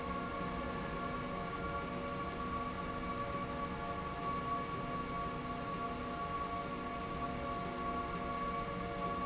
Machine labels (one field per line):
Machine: slide rail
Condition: normal